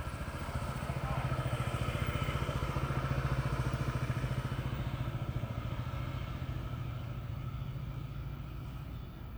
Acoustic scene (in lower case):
residential area